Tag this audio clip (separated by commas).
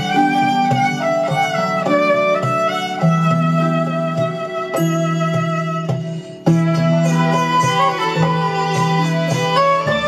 playing violin, Musical instrument, Violin, Music